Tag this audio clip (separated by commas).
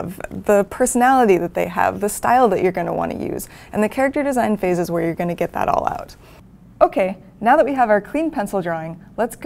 Speech